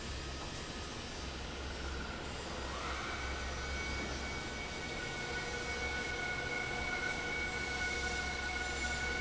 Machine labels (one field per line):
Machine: fan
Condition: normal